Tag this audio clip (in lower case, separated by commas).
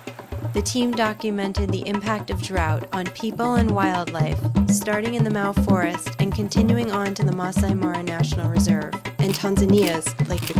speech, music